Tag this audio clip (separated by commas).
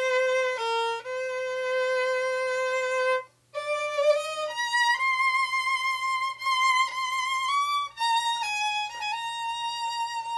Music, Musical instrument, fiddle